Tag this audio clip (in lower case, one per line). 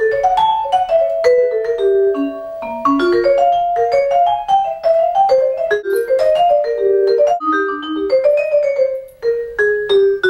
playing vibraphone